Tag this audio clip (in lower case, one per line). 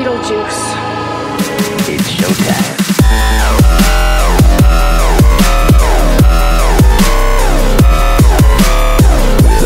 music
electronic music
dubstep